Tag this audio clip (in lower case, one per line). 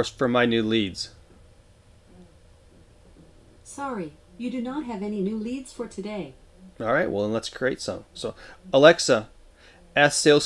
speech